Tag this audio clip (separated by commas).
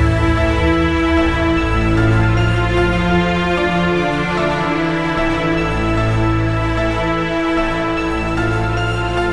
Music, Electronic music